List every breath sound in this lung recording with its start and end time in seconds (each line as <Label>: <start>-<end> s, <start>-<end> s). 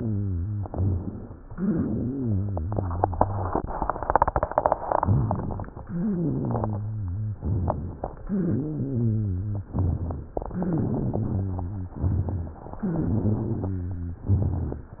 Inhalation: 0.65-1.41 s, 5.00-5.79 s, 7.40-8.19 s, 9.71-10.30 s, 12.01-12.60 s, 14.27-14.86 s
Exhalation: 1.53-3.73 s, 5.84-7.38 s, 8.24-9.68 s, 10.50-11.92 s, 12.78-14.20 s, 14.96-15.00 s
Wheeze: 0.00-0.65 s, 1.53-3.73 s, 5.84-7.38 s, 8.24-9.68 s, 10.50-11.92 s, 12.78-14.20 s, 14.96-15.00 s
Rhonchi: 5.00-5.79 s, 7.40-8.19 s, 9.71-10.30 s, 12.01-12.60 s, 14.27-14.86 s